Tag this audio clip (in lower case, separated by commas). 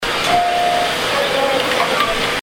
domestic sounds, rail transport, vehicle, doorbell, door, alarm, underground